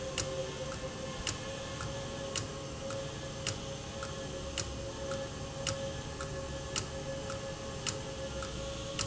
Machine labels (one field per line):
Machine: valve